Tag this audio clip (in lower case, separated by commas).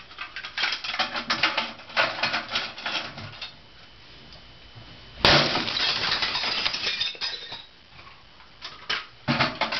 tools, hammer